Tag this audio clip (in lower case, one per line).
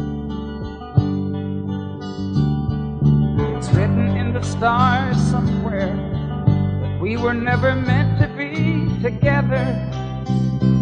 music